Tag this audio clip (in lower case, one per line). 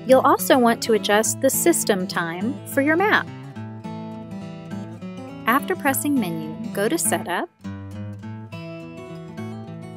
speech
music